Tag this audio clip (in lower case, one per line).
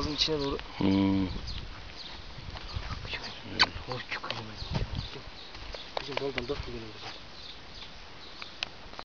speech